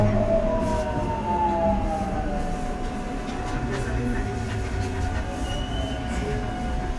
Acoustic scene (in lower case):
subway train